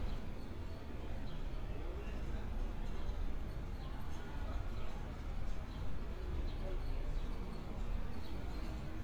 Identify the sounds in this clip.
background noise